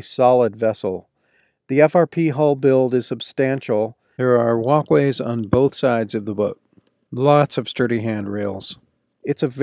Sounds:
speech

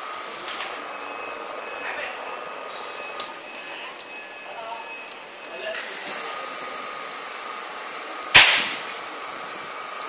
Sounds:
pump (liquid), water

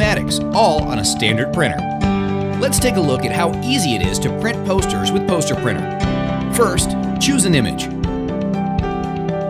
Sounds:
speech, music

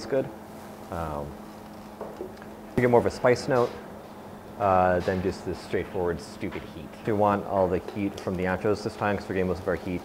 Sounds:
speech

